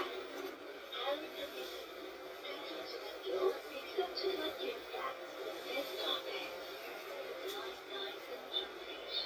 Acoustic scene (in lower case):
bus